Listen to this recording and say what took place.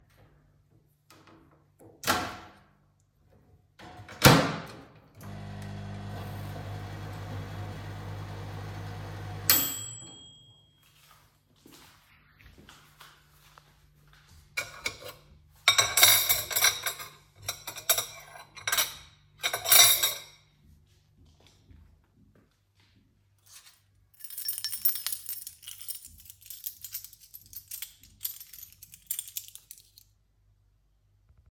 i open the microwave and close it and places something inside and turn it on . Then prepares a plate and a spoon.Finally picks up the key to open the cabinet.